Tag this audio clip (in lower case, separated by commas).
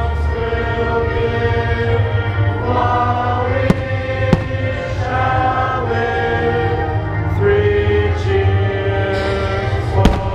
music, choir, male singing